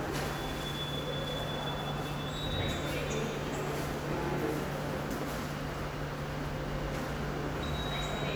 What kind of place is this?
subway station